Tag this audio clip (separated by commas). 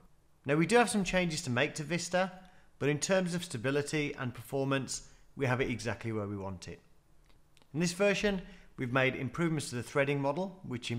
Speech